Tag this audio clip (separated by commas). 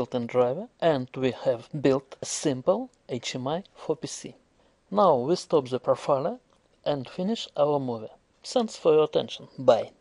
Narration, Speech